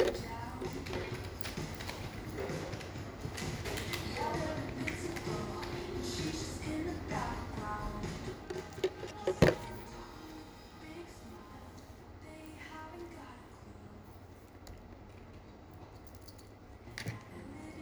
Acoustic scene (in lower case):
cafe